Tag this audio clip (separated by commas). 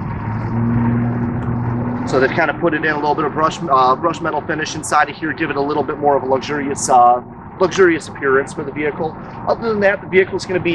Vehicle, Speech